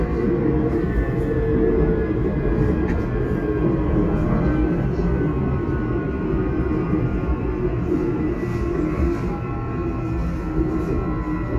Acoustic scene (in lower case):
subway train